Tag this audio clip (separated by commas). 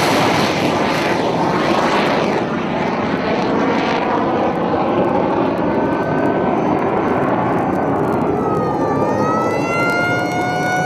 missile launch